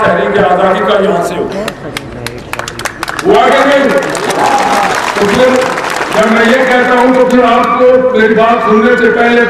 A man speaks, followed by applause